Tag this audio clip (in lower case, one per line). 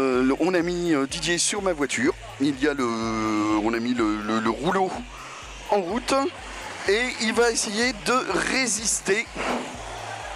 speech